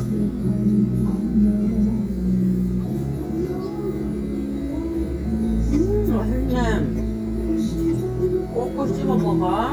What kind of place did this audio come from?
restaurant